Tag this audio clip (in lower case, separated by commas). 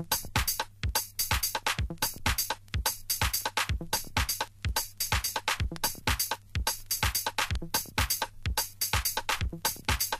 music